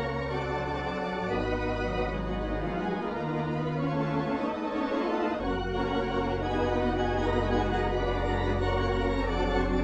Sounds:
Music

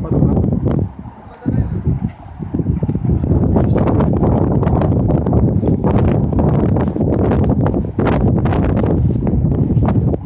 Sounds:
Speech

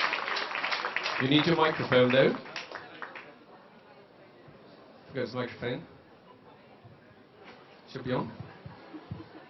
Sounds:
Speech

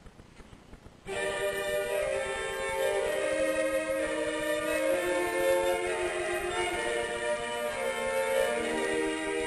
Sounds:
Music, Cello, Musical instrument, fiddle

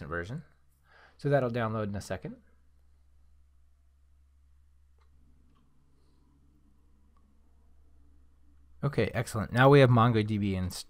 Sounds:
inside a small room, Speech

